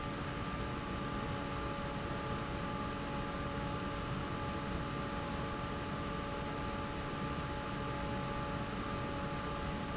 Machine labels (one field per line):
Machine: fan